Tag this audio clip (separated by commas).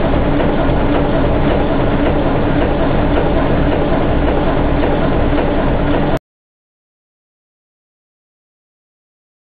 Vehicle, Heavy engine (low frequency)